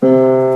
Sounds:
Music, Keyboard (musical), Musical instrument, Piano

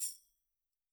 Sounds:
Tambourine, Music, Musical instrument, Percussion

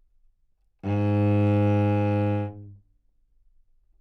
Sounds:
Bowed string instrument, Musical instrument, Music

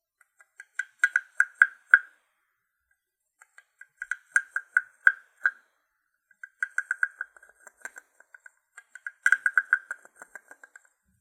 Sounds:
Tap

